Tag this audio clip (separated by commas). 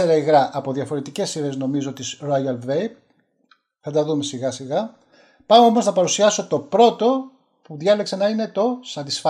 Speech